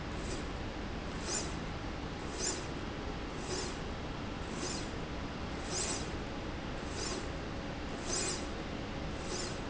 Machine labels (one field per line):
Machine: slide rail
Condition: normal